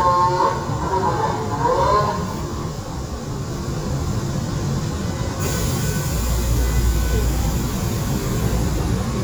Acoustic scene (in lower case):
subway train